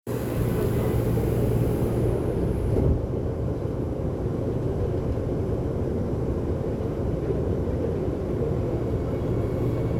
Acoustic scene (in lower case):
subway train